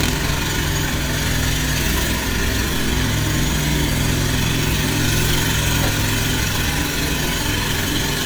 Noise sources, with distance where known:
jackhammer, near

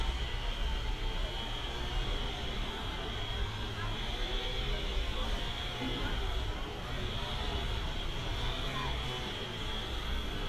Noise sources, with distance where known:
chainsaw, far

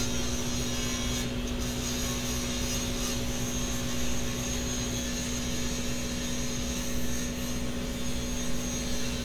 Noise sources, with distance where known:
unidentified powered saw, near

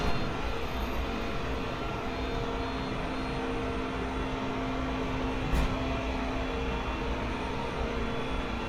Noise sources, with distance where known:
unidentified impact machinery

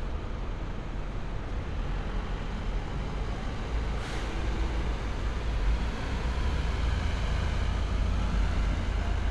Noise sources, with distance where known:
large-sounding engine, near

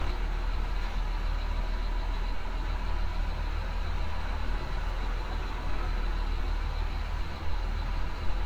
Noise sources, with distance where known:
large-sounding engine, near

